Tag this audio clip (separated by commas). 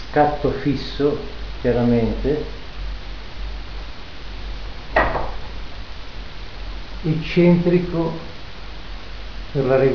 Speech